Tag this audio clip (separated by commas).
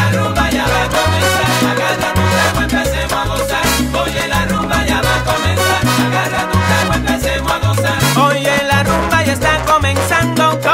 Music